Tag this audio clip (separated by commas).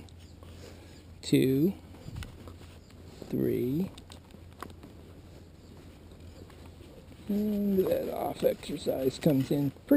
Speech